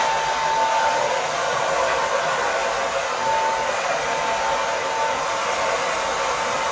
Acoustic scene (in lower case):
restroom